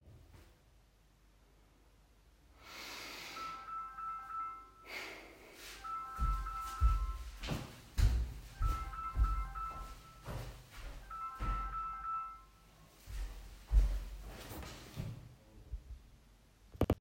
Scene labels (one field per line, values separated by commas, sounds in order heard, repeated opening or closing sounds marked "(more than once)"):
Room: living room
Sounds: phone ringing, footsteps